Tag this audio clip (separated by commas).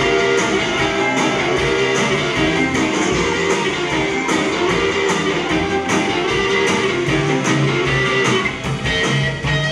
Strum, Guitar, Music, Musical instrument, Plucked string instrument, Bass guitar